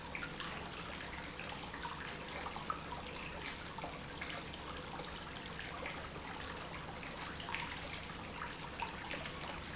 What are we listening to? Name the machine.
pump